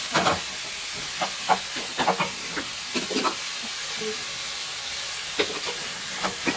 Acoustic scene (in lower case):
kitchen